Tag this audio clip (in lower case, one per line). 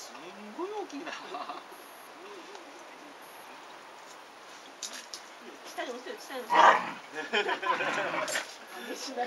canids
animal
bark
dog
speech
domestic animals